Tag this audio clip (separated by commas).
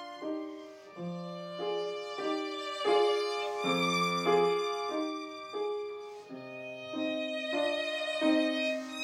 Violin, Music, Musical instrument